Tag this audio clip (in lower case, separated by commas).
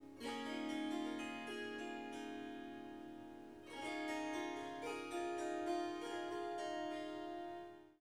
music, harp, musical instrument